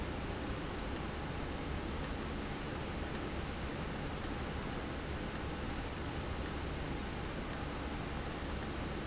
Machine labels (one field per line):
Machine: valve